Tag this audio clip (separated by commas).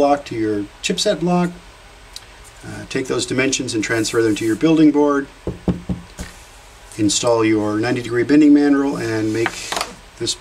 Speech